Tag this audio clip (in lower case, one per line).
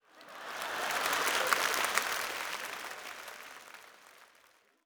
applause
human group actions